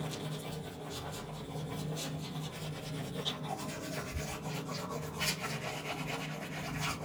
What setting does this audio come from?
restroom